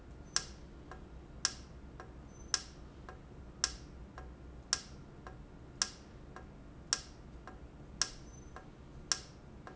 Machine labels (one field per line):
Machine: valve